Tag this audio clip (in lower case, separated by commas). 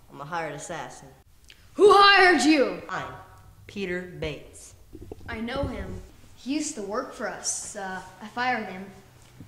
speech, conversation